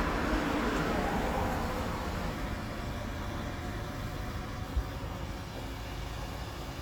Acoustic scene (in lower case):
street